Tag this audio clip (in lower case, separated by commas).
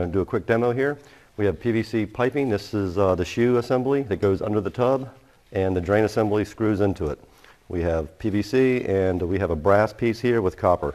speech